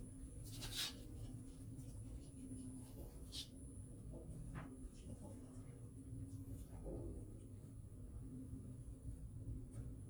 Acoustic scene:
elevator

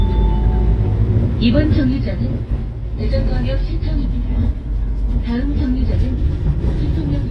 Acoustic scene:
bus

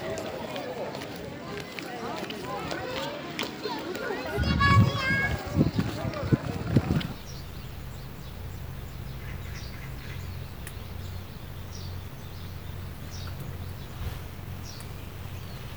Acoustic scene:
park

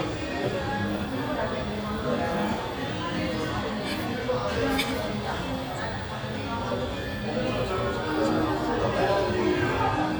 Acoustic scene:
cafe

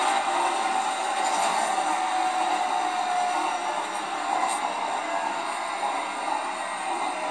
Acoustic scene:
subway train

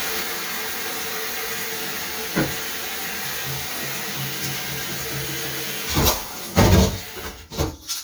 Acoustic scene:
kitchen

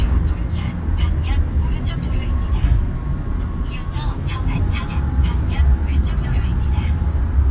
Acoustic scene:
car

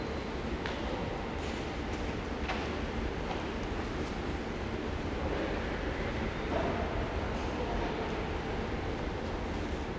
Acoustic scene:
subway station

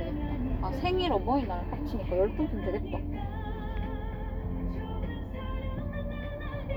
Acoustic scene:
car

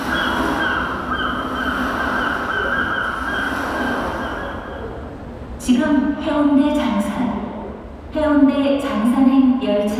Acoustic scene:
subway station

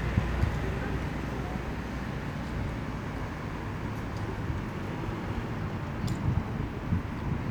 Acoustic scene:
street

